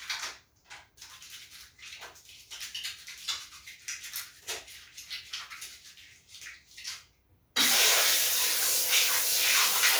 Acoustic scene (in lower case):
restroom